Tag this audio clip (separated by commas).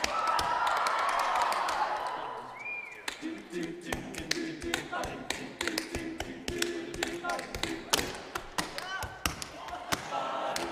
A capella, Thump, Singing, Vocal music, Choir